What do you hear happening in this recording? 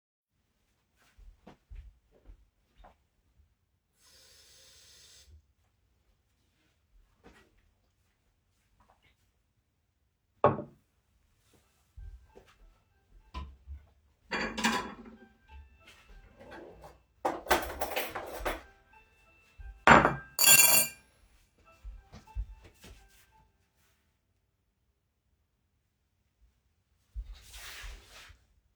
I take a glass and fill it with water. I take a sip and then I put it onto the table. My alarm ring goes off in another room. I hurry openening a drawer and put cutlery on my table. Then I go there to stop the alarm. After that you hear clothing_rustling.